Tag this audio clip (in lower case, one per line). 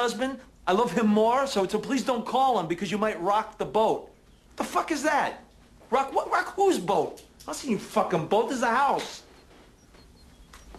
speech